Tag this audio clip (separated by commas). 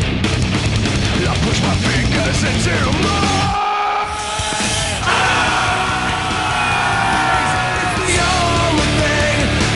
Music